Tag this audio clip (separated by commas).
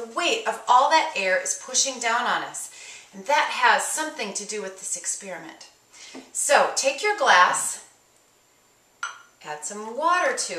Speech, Chink